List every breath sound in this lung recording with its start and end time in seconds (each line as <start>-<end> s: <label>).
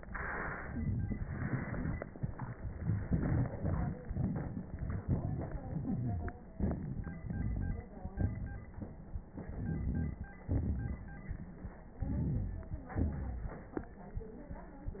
0.70-1.23 s: inhalation
0.70-1.19 s: crackles
1.21-2.60 s: exhalation
1.21-2.60 s: crackles
5.59-6.40 s: wheeze
6.56-7.24 s: inhalation
6.56-7.24 s: crackles
7.26-7.94 s: exhalation
7.26-7.94 s: wheeze
9.31-10.37 s: inhalation
9.31-10.41 s: crackles
10.41-11.89 s: exhalation
10.41-11.89 s: crackles
11.91-12.84 s: inhalation
11.91-12.84 s: crackles
12.85-13.81 s: exhalation